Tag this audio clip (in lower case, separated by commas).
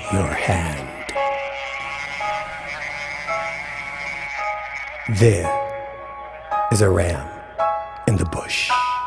speech, music